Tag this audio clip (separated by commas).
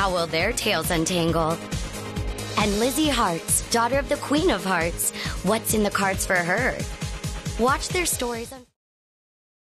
Speech, Music